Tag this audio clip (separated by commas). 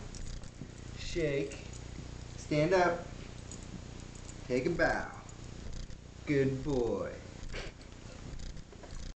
Speech